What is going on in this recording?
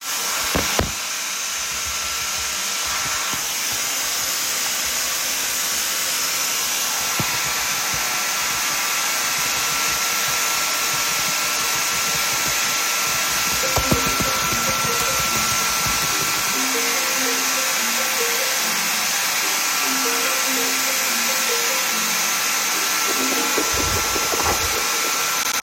First, I opened the drawer and put some cutlery in it. Then I walked over to my laptop and started typing. After a while, the phone rang.